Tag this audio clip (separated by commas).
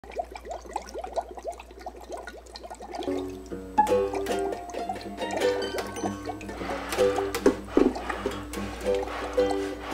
Ukulele, Accordion, Music